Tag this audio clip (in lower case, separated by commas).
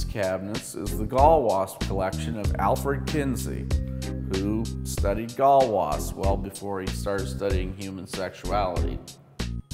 speech, music